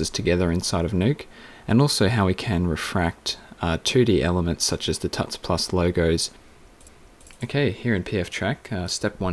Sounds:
Speech

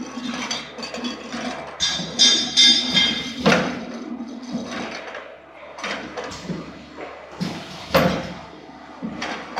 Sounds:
Chink

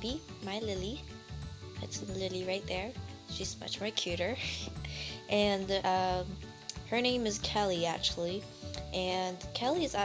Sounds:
Speech, Music

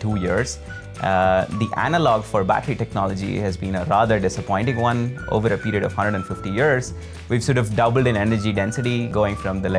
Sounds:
Music, Speech

